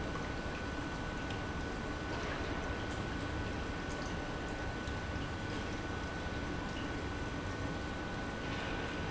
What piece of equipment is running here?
pump